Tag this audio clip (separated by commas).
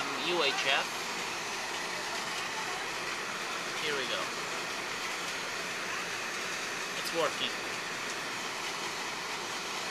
Speech